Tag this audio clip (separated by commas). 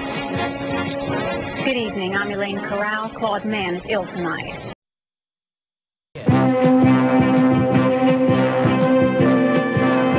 Music, Speech